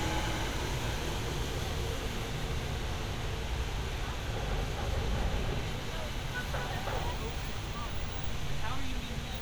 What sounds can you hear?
person or small group talking